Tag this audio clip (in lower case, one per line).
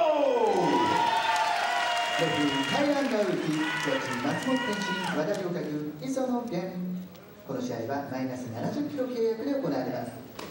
speech